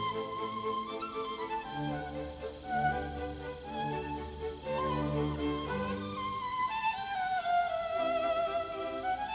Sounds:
Music, fiddle, Musical instrument

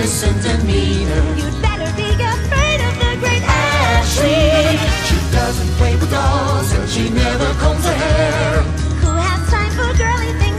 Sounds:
Music, Theme music

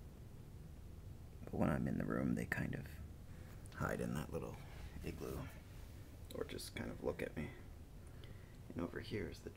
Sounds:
Speech

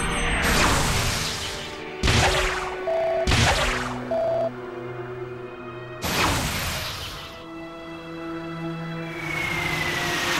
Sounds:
Music

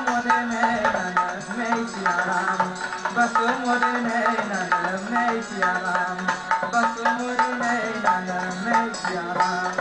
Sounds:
Music, Male singing

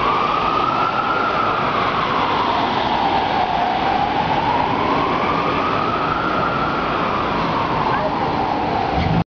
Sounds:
Police car (siren), Siren, Emergency vehicle

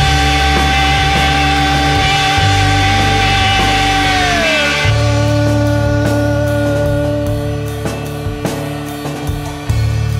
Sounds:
Music, Psychedelic rock, Punk rock

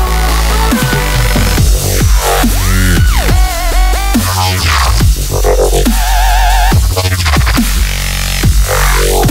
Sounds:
Music, Dubstep

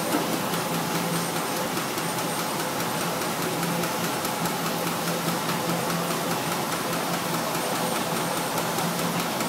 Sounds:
Engine

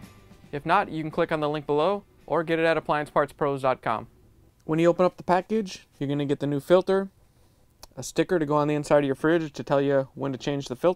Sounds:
Music, Speech

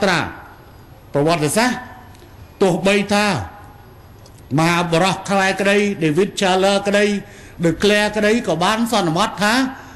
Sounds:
man speaking, Narration, Speech

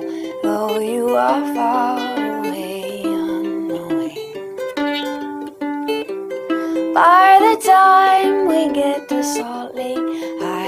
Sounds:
Plucked string instrument, Singing, Musical instrument, Music

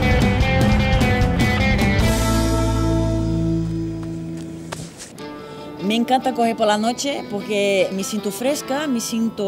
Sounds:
Music, Run, Speech

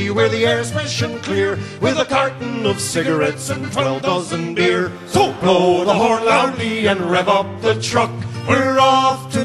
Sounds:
Music

